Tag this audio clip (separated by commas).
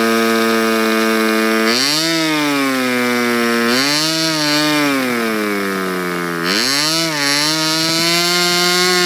Medium engine (mid frequency), Engine, Accelerating